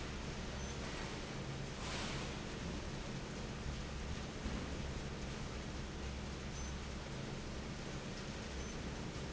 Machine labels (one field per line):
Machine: fan